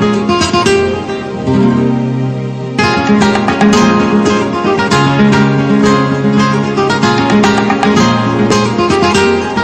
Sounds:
Music, Flamenco

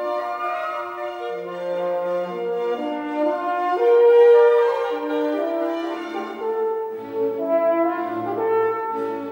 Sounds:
playing french horn

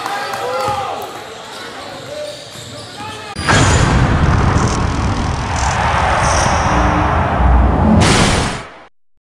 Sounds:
Speech

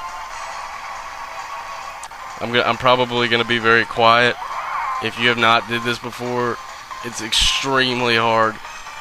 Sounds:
Speech, Music

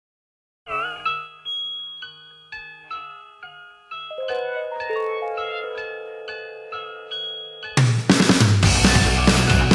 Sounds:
Marimba, Glockenspiel, Mallet percussion, Chime

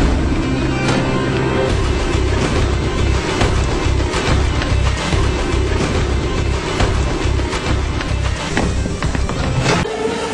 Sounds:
Music

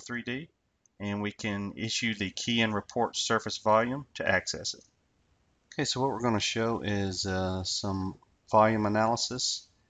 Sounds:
Speech

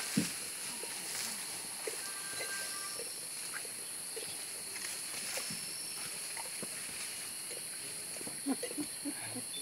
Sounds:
gibbon howling

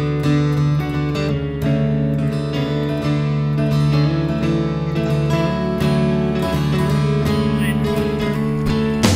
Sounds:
Speech, Music

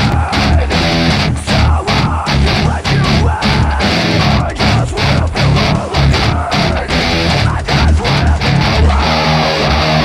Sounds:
Plucked string instrument, Guitar, Music, Musical instrument, Electric guitar

